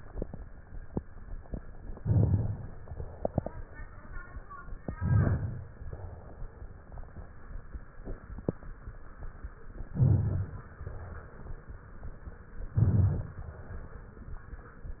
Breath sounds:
Inhalation: 1.97-2.70 s, 5.01-5.73 s, 9.98-10.70 s, 12.73-13.45 s
Crackles: 1.97-2.70 s, 5.01-5.73 s, 9.98-10.70 s, 12.73-13.45 s

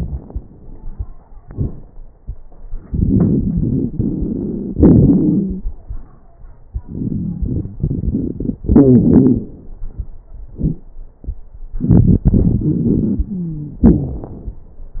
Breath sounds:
Inhalation: 2.86-4.74 s, 6.79-8.60 s, 11.83-13.27 s
Exhalation: 4.75-5.70 s, 8.65-9.56 s, 13.86-14.35 s
Wheeze: 6.79-8.61 s, 8.65-9.56 s, 13.33-13.82 s, 13.86-14.35 s
Crackles: 2.86-4.74 s, 4.75-5.70 s, 11.83-13.27 s

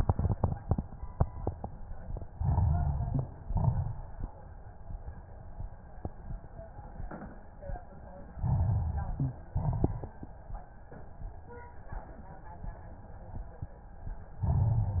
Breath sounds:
Inhalation: 2.30-3.28 s, 8.31-9.37 s, 14.38-15.00 s
Exhalation: 3.42-4.20 s, 9.49-10.27 s
Crackles: 2.30-3.28 s, 3.42-4.20 s, 8.31-9.37 s, 9.49-10.27 s, 14.38-15.00 s

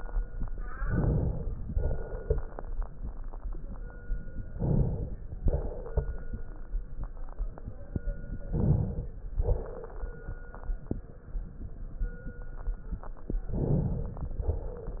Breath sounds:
Inhalation: 0.74-1.68 s, 4.50-5.45 s, 8.45-9.41 s, 13.47-14.40 s
Exhalation: 1.68-2.62 s, 5.45-6.41 s, 9.41-10.33 s, 14.40-15.00 s

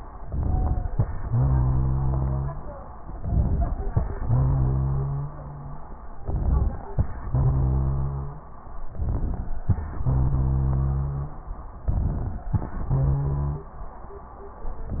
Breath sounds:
Inhalation: 0.22-0.89 s, 3.20-3.95 s, 6.19-6.85 s, 9.01-9.67 s, 11.89-12.55 s
Exhalation: 1.24-2.56 s, 4.29-5.70 s, 7.32-8.53 s, 10.09-11.41 s, 12.87-13.75 s
Wheeze: 0.43-0.79 s, 1.24-2.56 s, 4.29-5.70 s, 7.32-8.53 s, 10.09-11.41 s, 12.87-13.75 s
Rhonchi: 3.24-3.94 s, 6.20-6.82 s, 9.01-9.62 s, 11.86-12.48 s

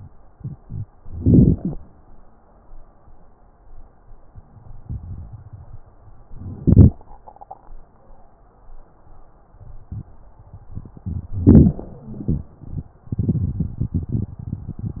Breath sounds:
Inhalation: 1.07-1.81 s, 6.33-7.03 s, 11.34-12.03 s
Exhalation: 12.08-12.94 s

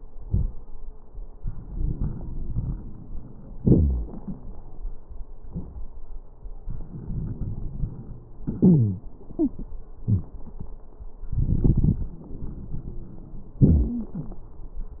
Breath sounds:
Inhalation: 1.35-3.56 s, 6.67-8.43 s, 11.30-12.15 s
Exhalation: 3.58-4.09 s, 8.46-9.07 s, 13.62-14.54 s
Wheeze: 1.64-3.56 s, 3.58-4.09 s, 6.67-8.43 s, 8.62-9.07 s, 9.32-9.60 s, 10.03-10.31 s, 13.62-14.54 s
Crackles: 11.30-12.15 s

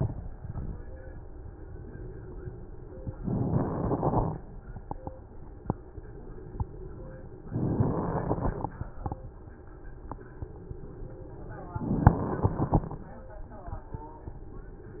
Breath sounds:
Inhalation: 3.08-4.57 s, 7.36-8.85 s, 11.68-13.16 s
Crackles: 3.08-4.57 s, 7.36-8.85 s, 11.68-13.16 s

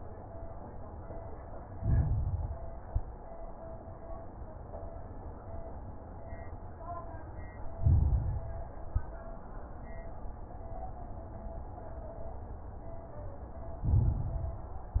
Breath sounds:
Inhalation: 1.63-2.77 s, 7.73-8.87 s, 13.83-14.97 s
Exhalation: 2.83-3.17 s, 8.87-9.21 s
Crackles: 1.63-2.77 s, 2.83-3.17 s, 7.73-8.87 s, 8.87-9.21 s, 13.83-14.97 s

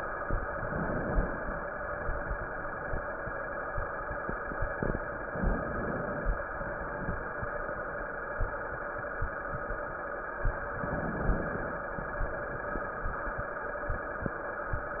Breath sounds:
Inhalation: 0.53-1.63 s, 5.33-6.43 s, 10.81-11.92 s

